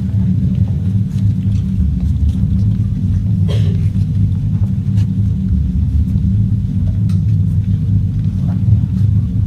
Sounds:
inside a large room or hall

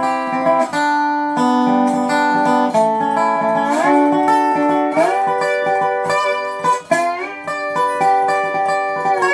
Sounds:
Strum, Plucked string instrument, Music, Guitar, Musical instrument

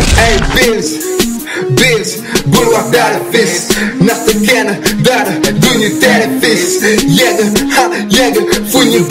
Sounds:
Music

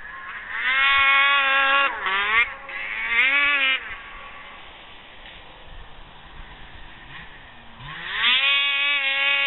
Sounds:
Vehicle

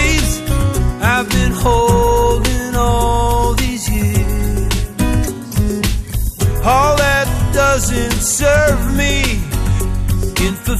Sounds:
Music

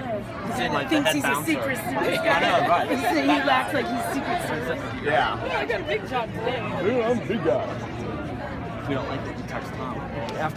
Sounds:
Chatter, Crowd, Speech

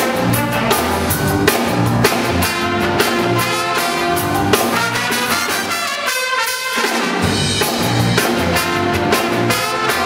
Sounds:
Music, Musical instrument

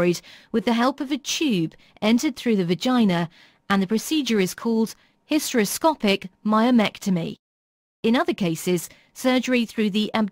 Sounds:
Speech

